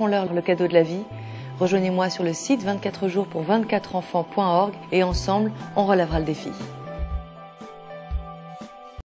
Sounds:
speech
music

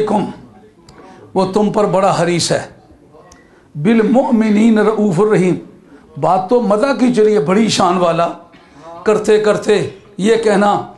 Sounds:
monologue
man speaking
speech

